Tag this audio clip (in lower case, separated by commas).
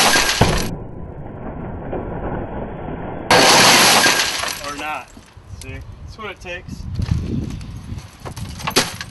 breaking, speech, glass